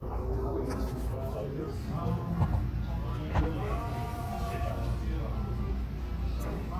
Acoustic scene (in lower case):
cafe